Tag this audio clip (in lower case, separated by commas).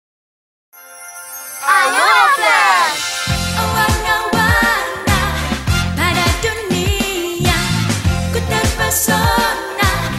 music of asia, music